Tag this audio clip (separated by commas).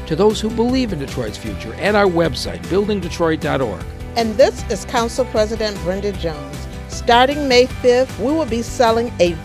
Music, Speech